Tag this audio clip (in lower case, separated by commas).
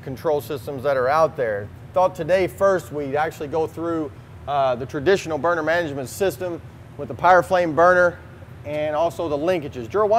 speech